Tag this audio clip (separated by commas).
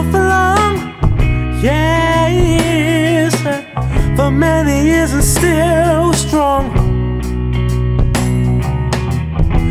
Music